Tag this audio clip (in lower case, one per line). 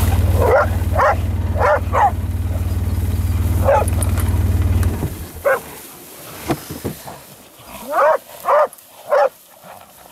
dog baying